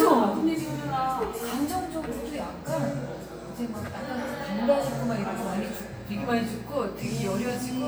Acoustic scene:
cafe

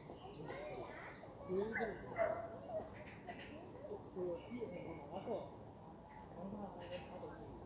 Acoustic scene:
park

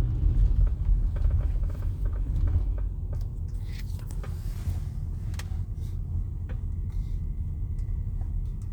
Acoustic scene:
car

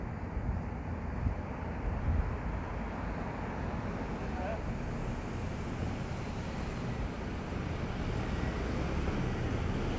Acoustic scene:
street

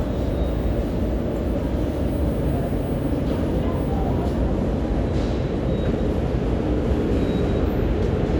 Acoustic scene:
subway station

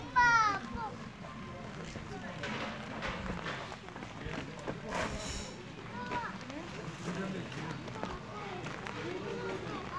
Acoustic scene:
park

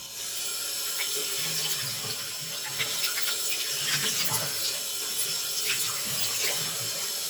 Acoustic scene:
restroom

